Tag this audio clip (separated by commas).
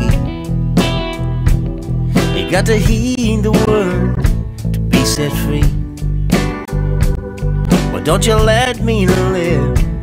Music